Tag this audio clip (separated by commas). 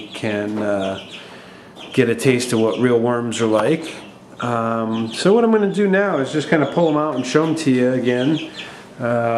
Speech, Chicken